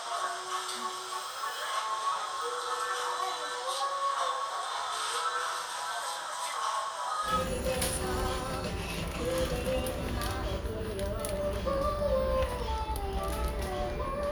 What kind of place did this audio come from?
crowded indoor space